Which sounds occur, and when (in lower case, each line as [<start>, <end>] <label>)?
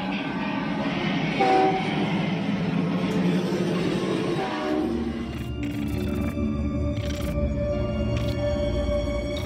[0.00, 5.39] train
[1.35, 1.78] steam whistle
[3.04, 3.13] tick
[4.30, 4.75] steam whistle
[5.13, 9.45] music
[5.17, 5.41] sound effect
[5.56, 6.28] sound effect
[6.91, 7.32] sound effect
[8.09, 8.31] sound effect
[8.28, 8.32] tick
[9.31, 9.45] sound effect